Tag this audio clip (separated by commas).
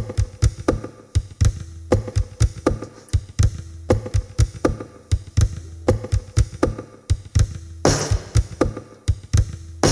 Drum kit, Bass drum, Musical instrument, Drum, Music